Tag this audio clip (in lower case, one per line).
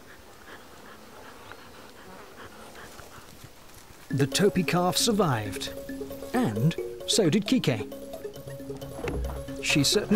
outside, rural or natural
speech
wild animals
music
animal